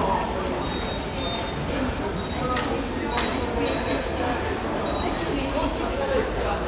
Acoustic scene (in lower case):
subway station